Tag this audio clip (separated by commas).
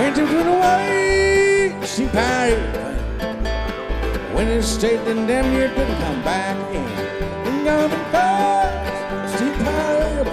Music, Country, Bluegrass